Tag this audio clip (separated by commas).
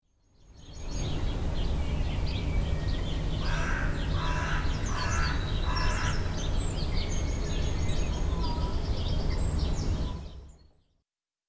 Wild animals, Animal, Bird